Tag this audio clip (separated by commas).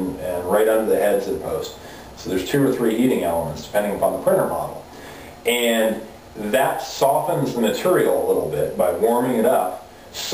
Speech